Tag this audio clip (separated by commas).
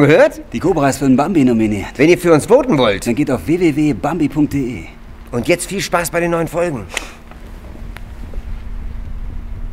Speech